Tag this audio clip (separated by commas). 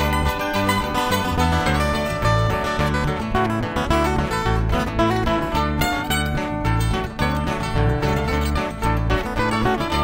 Music